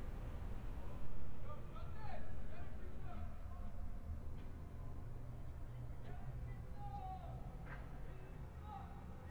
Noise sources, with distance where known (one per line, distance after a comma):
person or small group shouting, far